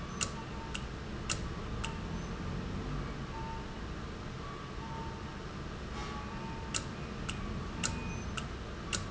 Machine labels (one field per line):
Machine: valve